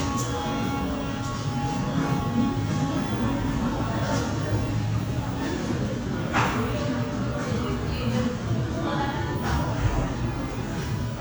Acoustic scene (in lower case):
cafe